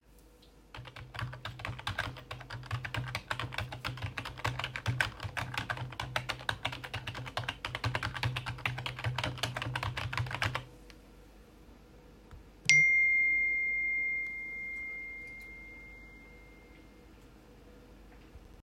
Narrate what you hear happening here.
I walked to my desk and started typing while my phone produced a notification sound.